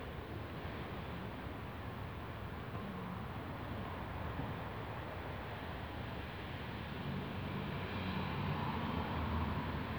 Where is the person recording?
in a residential area